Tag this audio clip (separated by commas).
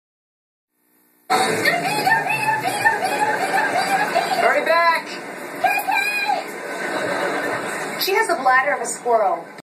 Speech